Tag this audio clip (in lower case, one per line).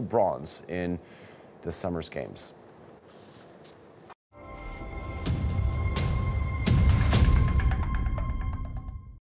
speech
music